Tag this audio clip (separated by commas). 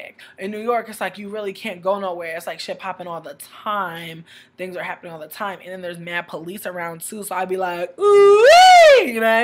Speech